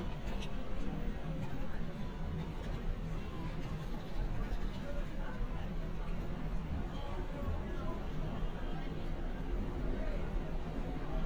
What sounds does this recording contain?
person or small group talking